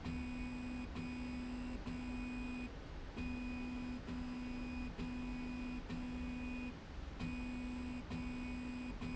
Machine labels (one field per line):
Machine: slide rail